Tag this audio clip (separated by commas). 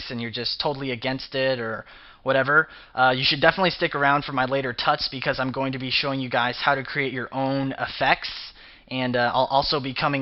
Speech